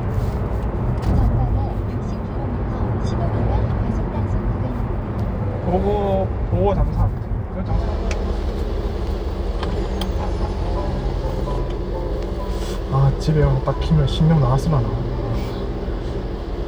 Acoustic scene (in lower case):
car